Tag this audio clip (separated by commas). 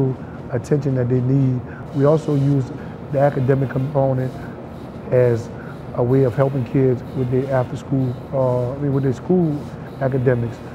Speech